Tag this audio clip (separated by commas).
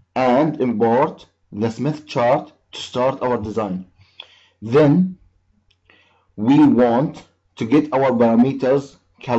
Speech